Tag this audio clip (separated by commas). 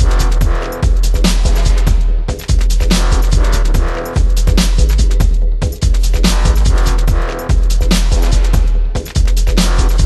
Music